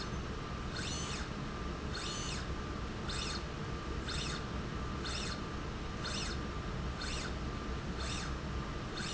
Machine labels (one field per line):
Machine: slide rail